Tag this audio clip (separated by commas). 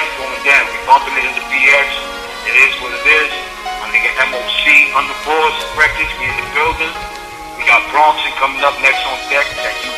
Music, Speech